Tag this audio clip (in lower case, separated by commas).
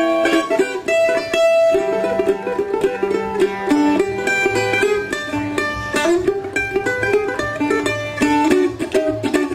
music, folk music